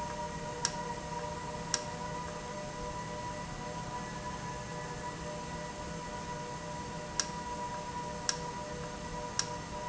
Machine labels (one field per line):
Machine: valve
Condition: normal